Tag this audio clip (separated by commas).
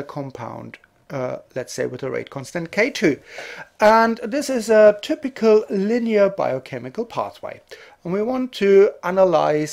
Speech